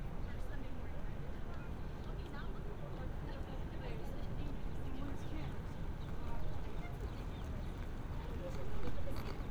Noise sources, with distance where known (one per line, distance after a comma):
unidentified human voice